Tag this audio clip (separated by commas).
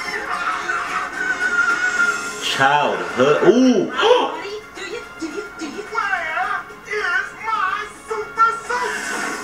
Music, Speech